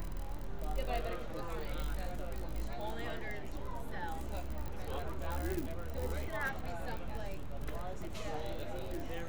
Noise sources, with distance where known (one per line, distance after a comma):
person or small group talking, near